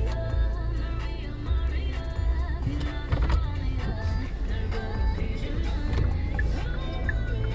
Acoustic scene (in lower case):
car